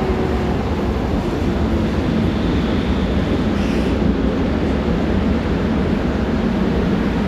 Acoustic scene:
subway station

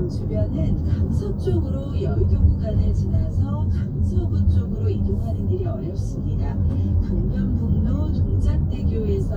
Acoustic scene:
car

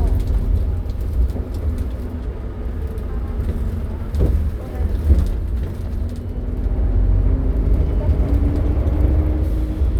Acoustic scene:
bus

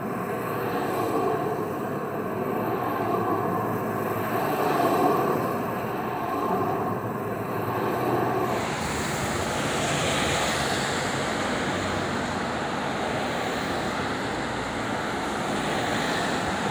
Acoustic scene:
street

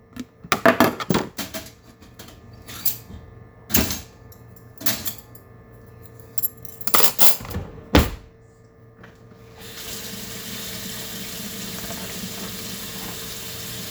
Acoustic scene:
kitchen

